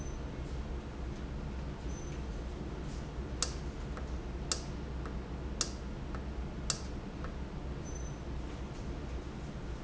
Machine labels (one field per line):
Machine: valve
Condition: normal